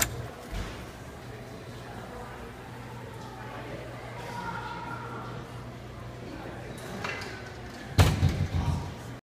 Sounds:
Door, Speech

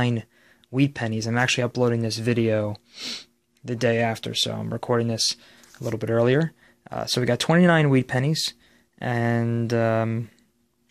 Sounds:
Speech

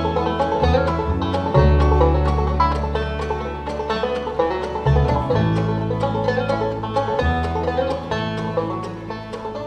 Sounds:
Classical music, Bowed string instrument, Music

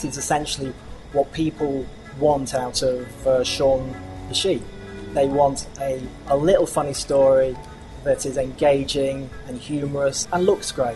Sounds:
Speech, Music

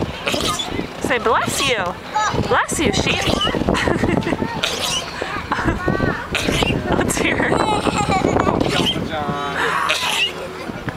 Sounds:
Speech

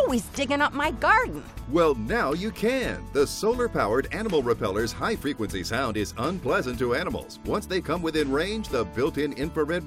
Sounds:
Speech, Music

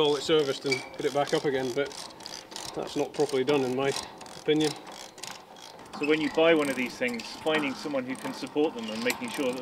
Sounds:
Speech

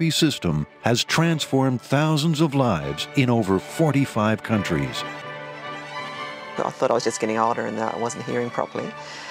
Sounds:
Sound effect, Music, Speech

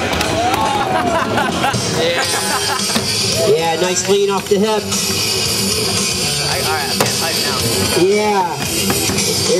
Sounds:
Speech

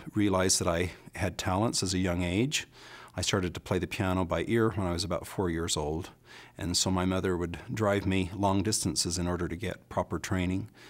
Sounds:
Speech

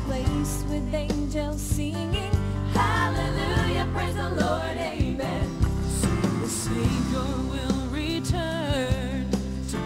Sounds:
Music, Gospel music

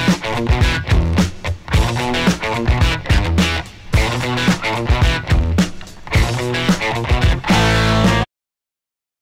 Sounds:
Musical instrument, Music, Drum kit

